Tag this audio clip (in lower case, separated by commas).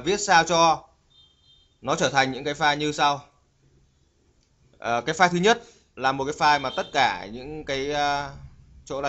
speech